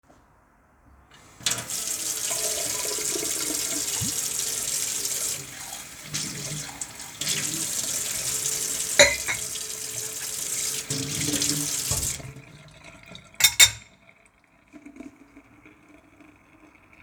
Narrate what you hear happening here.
I turned on the kitchen tap and let water run. While the water was running I washed some cutlery and dishes in the sink. The running water and dish sounds happened at the same time.